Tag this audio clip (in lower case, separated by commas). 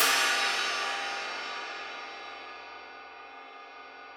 percussion, music, hi-hat, cymbal, musical instrument